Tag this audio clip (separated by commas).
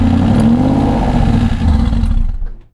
Motor vehicle (road), Car, Engine, Vehicle